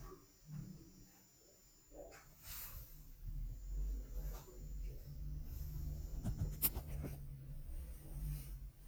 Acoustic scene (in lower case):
elevator